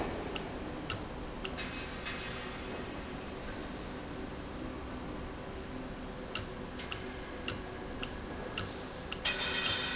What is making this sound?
valve